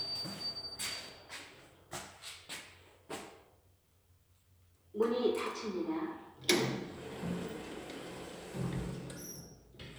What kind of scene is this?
elevator